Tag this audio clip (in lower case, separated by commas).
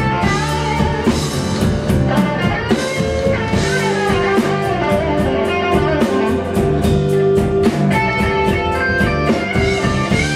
pop music, music